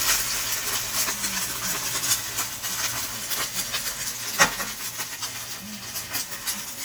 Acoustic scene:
kitchen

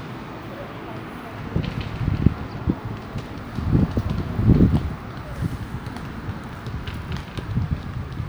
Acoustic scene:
residential area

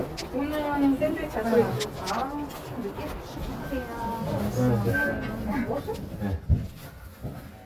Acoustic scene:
elevator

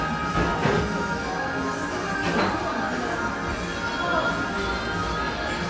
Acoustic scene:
cafe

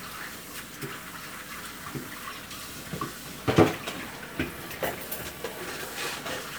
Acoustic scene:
kitchen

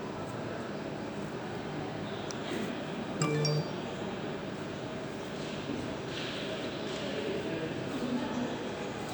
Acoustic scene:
subway station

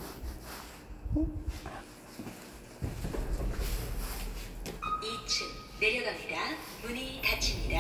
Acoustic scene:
elevator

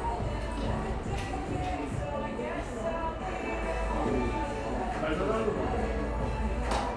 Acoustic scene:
cafe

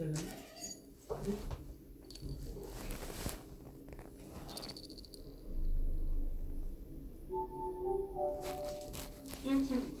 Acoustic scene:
elevator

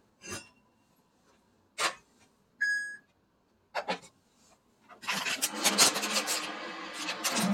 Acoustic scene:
kitchen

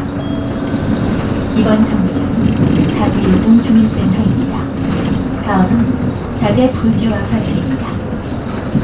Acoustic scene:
bus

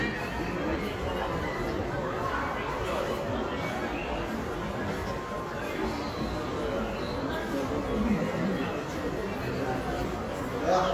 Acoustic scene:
crowded indoor space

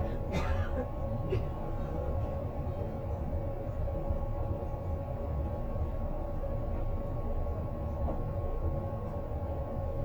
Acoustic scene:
bus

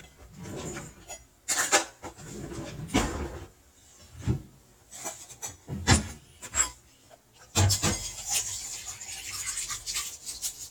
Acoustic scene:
kitchen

